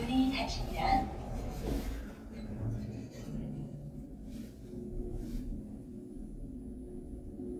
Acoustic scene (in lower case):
elevator